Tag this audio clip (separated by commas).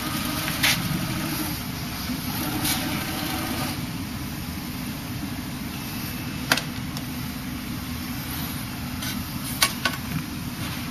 Printer